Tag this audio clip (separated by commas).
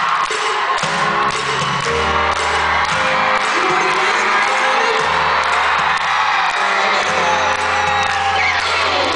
Music, Speech